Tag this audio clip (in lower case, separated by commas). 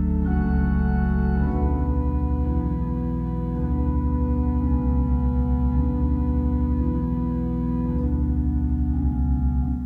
music, keyboard (musical), organ, musical instrument, inside a small room